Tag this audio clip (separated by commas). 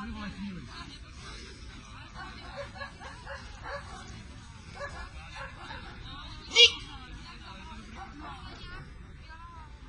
Speech, Yip